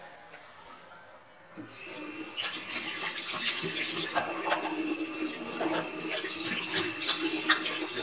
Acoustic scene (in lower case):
restroom